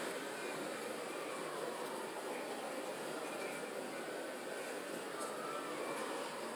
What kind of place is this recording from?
residential area